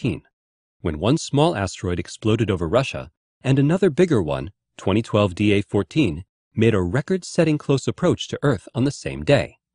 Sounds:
speech

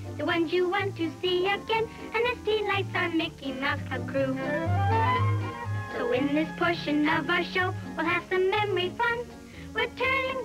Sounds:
music

